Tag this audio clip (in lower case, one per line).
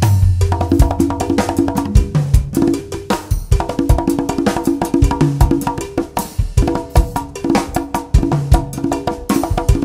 music
percussion